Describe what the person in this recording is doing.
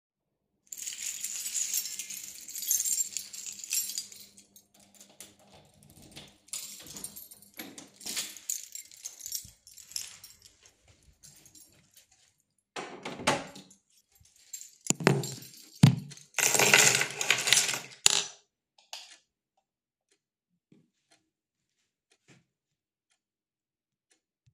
I took out my keys unlocked the door opened it then closed it then I put my keychain on the shelf, then I turned the light switch on.